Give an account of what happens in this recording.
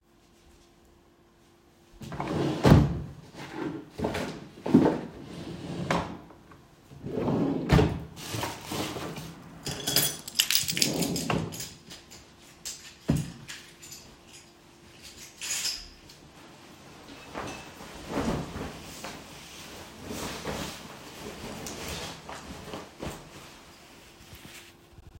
I opened a drawer and searched for my keys but did not find them, so I closed it. I opened another drawer, found the keys, took them, and closed the drawer. Then I put on my jacket.